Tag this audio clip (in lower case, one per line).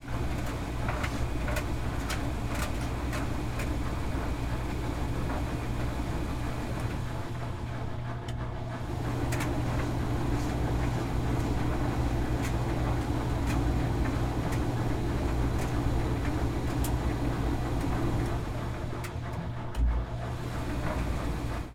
engine